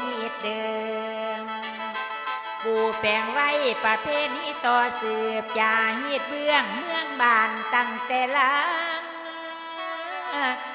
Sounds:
Music

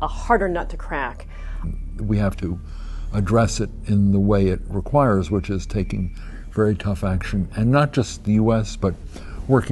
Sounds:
Music, Speech

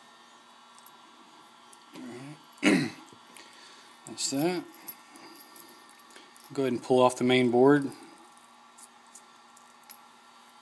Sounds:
Speech, inside a small room

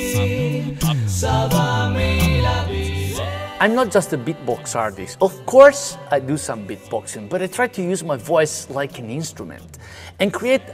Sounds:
Music, Background music, Speech

